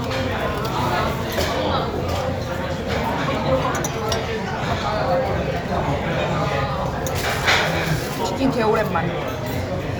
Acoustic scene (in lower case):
restaurant